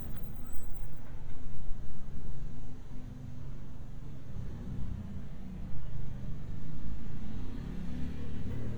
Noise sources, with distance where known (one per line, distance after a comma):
small-sounding engine